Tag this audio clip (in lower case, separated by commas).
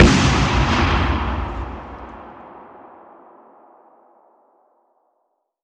explosion, boom